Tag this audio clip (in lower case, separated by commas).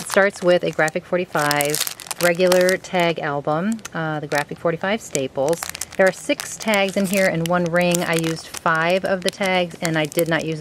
speech